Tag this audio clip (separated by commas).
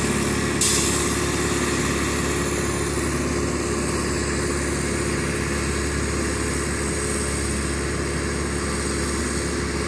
Vehicle, outside, rural or natural